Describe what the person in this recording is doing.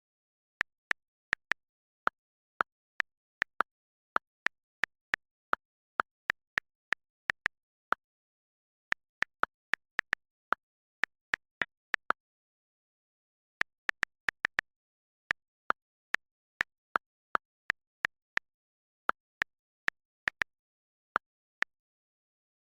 Typing on keyboard while phone rings.